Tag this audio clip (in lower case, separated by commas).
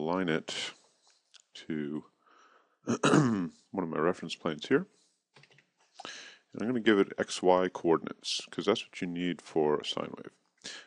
speech